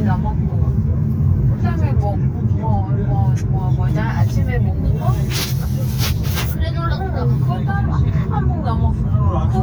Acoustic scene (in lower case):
car